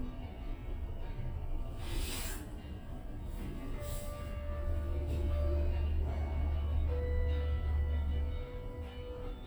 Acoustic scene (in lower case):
elevator